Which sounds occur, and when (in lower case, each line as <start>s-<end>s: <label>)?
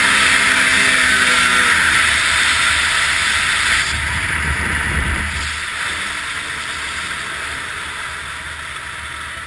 0.0s-9.4s: motorboat